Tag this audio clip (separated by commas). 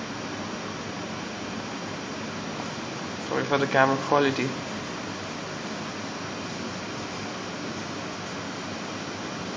Speech, Air conditioning